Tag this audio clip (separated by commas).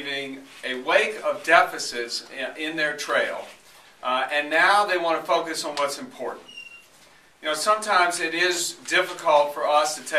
Speech